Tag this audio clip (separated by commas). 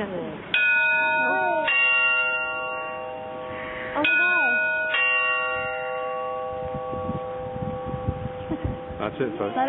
Speech